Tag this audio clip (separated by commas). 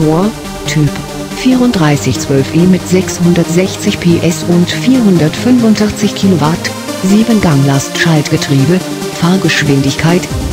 Music, Speech